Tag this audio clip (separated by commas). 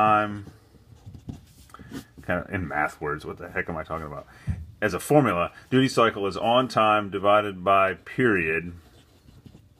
Writing, Speech